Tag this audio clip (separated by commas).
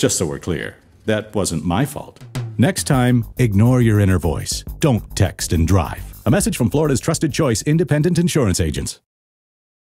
Radio, Speech, Music